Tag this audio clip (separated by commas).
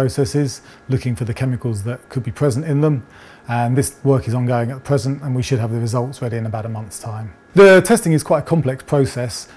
Speech